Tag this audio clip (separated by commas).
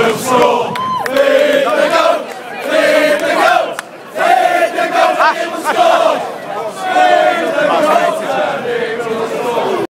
Speech